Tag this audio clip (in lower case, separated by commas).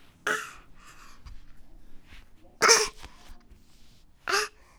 human voice